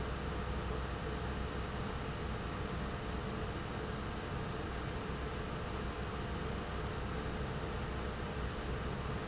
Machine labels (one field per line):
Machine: pump